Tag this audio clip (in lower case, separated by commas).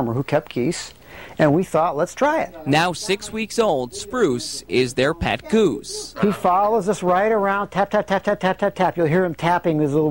speech